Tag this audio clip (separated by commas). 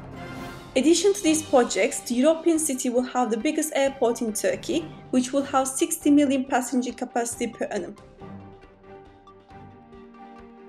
Speech, Music